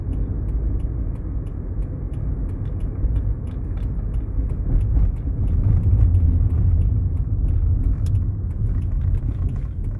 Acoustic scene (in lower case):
car